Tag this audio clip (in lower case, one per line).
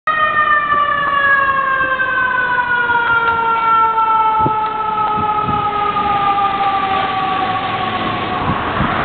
car
vehicle
emergency vehicle